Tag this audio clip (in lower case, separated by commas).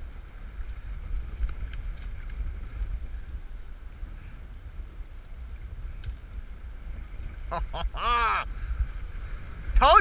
wind noise (microphone), wind